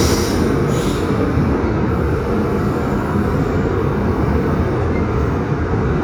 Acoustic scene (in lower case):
subway train